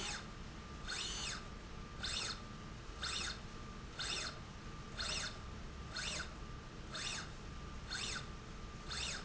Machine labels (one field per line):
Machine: slide rail